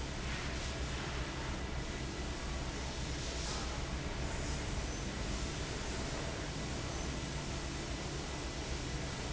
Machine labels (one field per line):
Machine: fan